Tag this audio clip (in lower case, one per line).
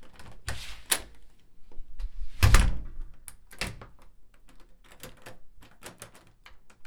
slam
door
home sounds